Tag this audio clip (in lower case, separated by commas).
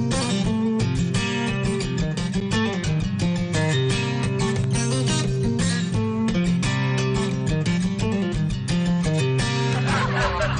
music